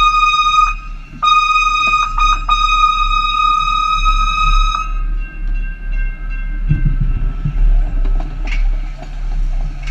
A high pitched horn sounds and a railroad crossing dings